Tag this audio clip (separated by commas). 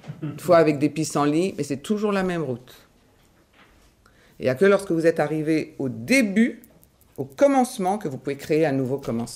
Speech